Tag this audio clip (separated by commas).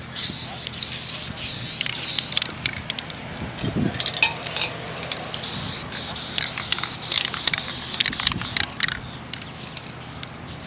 Spray